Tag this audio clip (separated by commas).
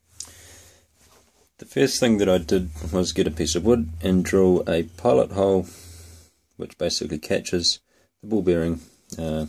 Speech